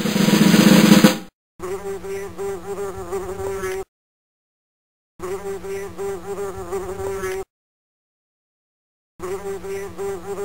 A drum roll is followed by a buzzing